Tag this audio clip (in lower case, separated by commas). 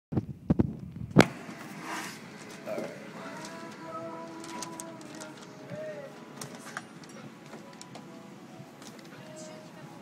airplane, vehicle, speech, music, aircraft